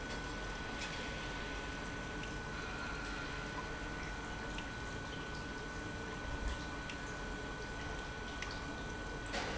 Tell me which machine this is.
pump